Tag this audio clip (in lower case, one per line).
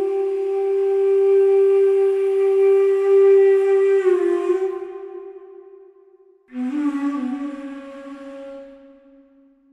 music